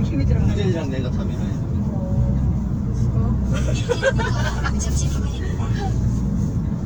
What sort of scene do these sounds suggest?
car